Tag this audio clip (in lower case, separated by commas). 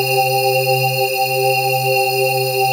organ, keyboard (musical), music, musical instrument